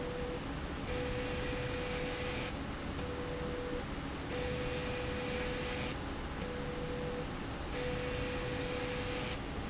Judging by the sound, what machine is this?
slide rail